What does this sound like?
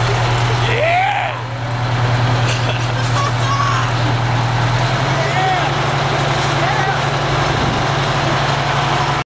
A man talking and a large vehicle's engine running